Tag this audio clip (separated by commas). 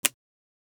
Motor vehicle (road), Car, Vehicle